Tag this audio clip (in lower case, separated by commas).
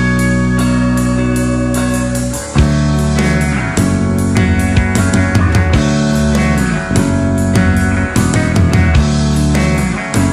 progressive rock, music